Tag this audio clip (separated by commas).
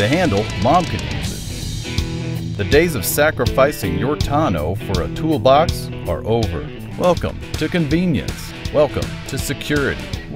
Music, Speech